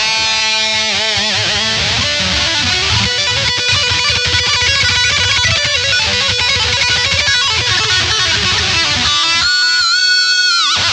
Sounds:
Guitar, Music, Musical instrument

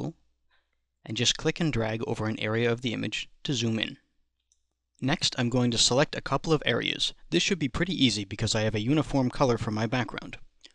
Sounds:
Speech

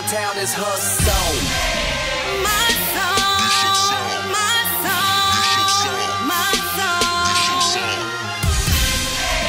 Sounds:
Dance music, Music

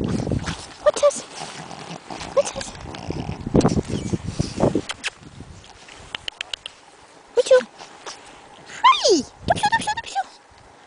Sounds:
Dog, Speech, pets, Animal

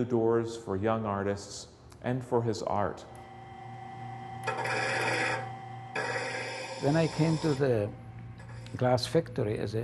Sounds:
Speech

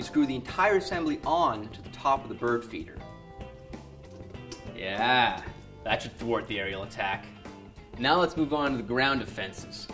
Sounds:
Speech

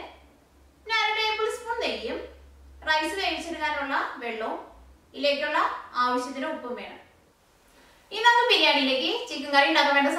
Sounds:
Speech

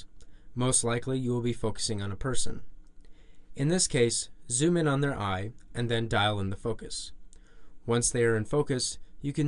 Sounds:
Speech

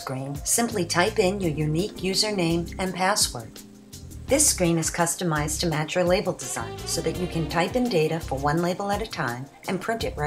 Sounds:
Speech, Music

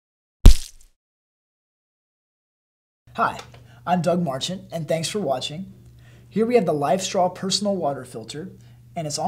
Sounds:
Speech

